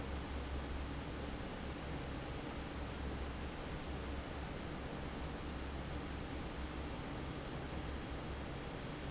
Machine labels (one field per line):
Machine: fan